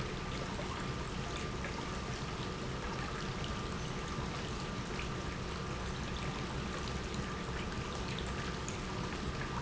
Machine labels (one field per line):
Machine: pump